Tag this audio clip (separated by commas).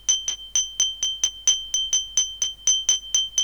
Glass